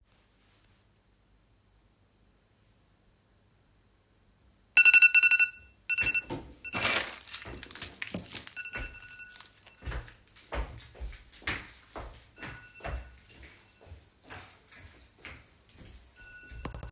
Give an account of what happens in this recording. My alarm started ringing. I then had to grab my keys and leave quickly.